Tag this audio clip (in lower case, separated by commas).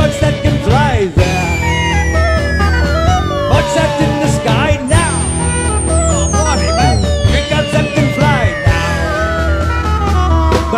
progressive rock, singing, music